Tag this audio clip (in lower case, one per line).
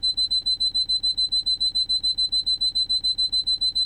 alarm